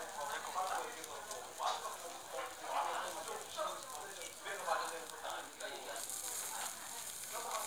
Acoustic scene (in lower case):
restaurant